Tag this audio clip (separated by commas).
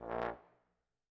Music, Brass instrument, Musical instrument